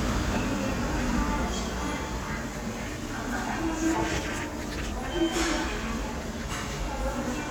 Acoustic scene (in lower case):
subway station